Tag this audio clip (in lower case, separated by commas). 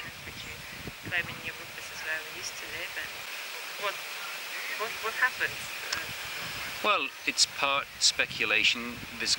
outside, rural or natural, outside, urban or man-made, speech